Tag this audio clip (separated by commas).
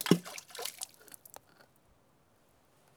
Water, splatter, Liquid